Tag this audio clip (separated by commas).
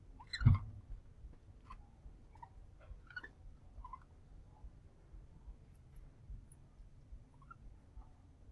Wild animals, Animal